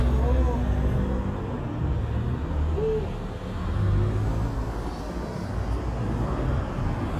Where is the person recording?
on a street